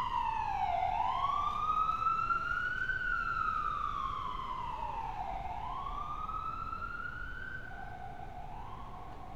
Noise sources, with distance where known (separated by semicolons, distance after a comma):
siren, near